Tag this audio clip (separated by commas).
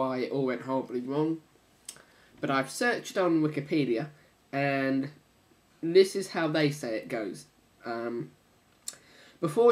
Speech